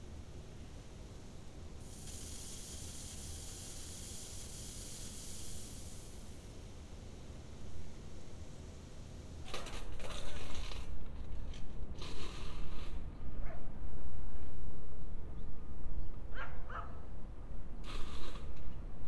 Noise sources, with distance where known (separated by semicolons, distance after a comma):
background noise